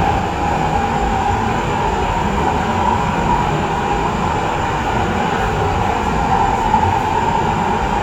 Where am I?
on a subway train